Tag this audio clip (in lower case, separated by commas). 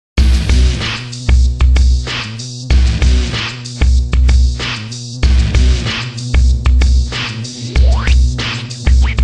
music, sampler